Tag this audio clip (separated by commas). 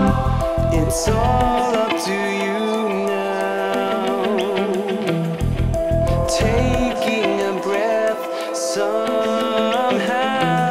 Music